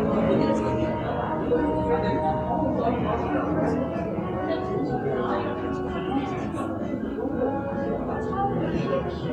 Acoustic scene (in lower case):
cafe